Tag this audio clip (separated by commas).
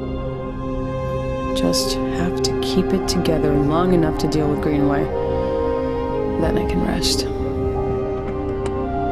Music, Speech